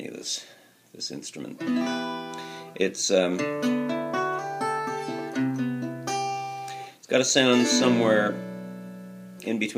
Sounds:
Speech, Musical instrument, Acoustic guitar, Guitar, Plucked string instrument, Music, Strum

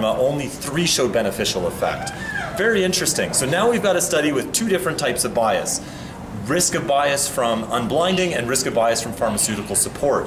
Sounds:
Speech

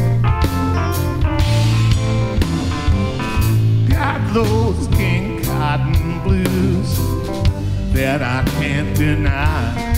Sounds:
Music, Blues

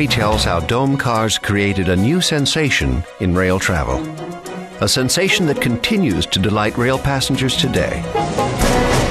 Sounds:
Speech, Music

